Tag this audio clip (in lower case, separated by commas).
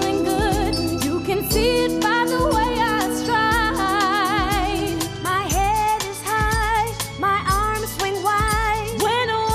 child singing